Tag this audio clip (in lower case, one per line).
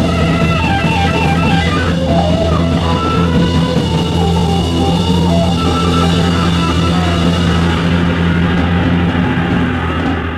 heavy metal
rock music
music
psychedelic rock